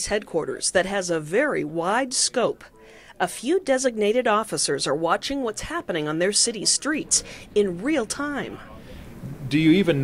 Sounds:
speech

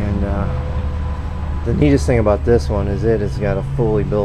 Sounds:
speech

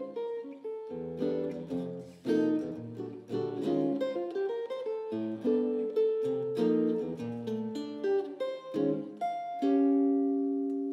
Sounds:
music
musical instrument
guitar
plucked string instrument

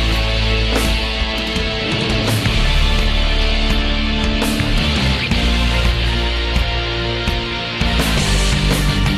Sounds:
blues
music

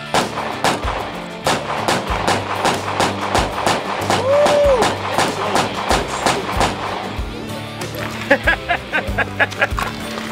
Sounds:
outside, rural or natural
speech
music

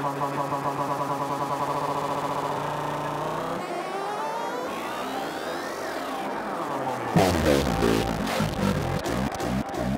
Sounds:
music
synthesizer
musical instrument

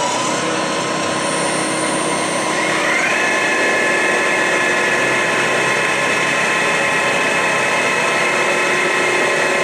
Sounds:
heavy engine (low frequency)
engine

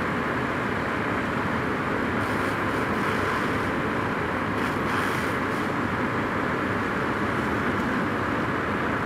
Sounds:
outside, urban or man-made

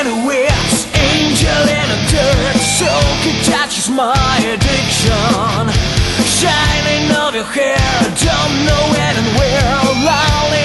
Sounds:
music

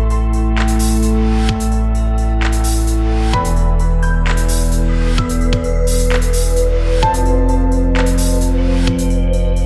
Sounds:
dubstep
music

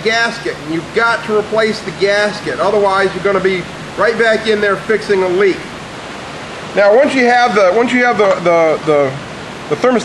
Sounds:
speech

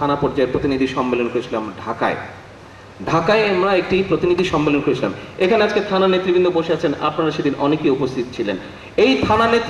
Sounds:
male speech
monologue
speech

